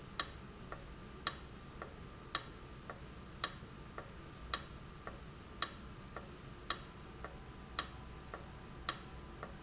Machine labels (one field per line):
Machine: valve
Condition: abnormal